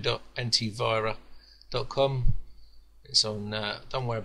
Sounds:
Speech

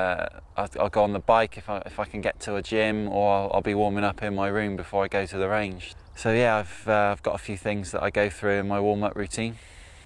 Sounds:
Speech

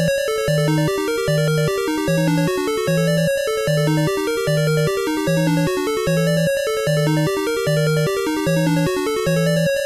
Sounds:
Music, Soundtrack music

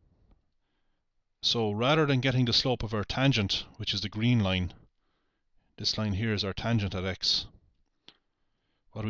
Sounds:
Speech

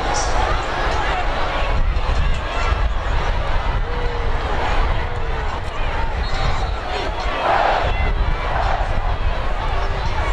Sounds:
Speech

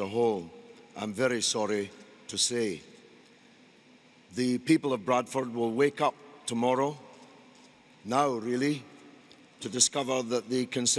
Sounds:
Speech, man speaking, monologue

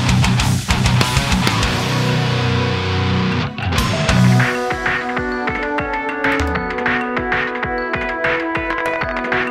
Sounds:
Music, Heavy metal

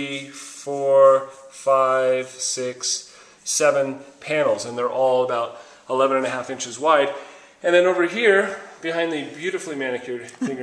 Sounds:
Speech

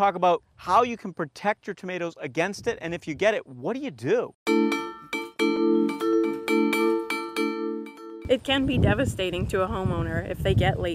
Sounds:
Glockenspiel, Mallet percussion, xylophone

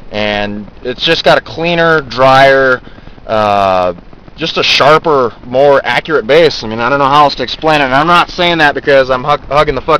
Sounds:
Speech

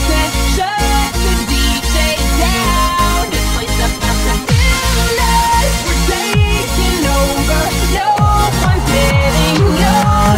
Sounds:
Rhythm and blues, Music

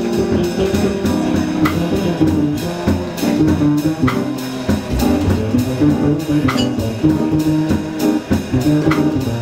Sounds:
Music, Jazz

